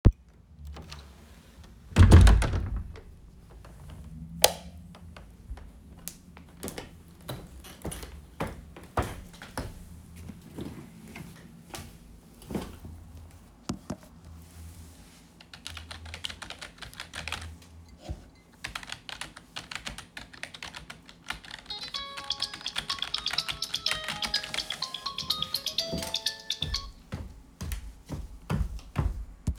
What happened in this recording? I opened the door of the bedroom. I pressed the light switch. I walked towards the desk, started typing on the keyboard and at the same time the phone rang.